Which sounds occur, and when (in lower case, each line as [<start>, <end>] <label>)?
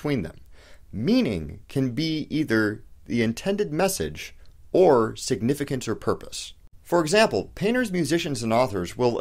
[0.00, 0.41] male speech
[0.00, 6.69] background noise
[0.35, 0.42] tick
[0.52, 0.81] breathing
[0.90, 2.82] male speech
[3.08, 4.33] male speech
[4.41, 4.56] breathing
[4.46, 4.54] tick
[4.75, 6.52] male speech
[6.21, 6.28] tick
[6.76, 9.20] background noise
[6.88, 9.20] male speech